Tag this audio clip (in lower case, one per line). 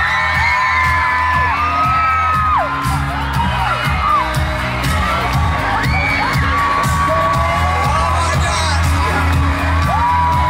speech
music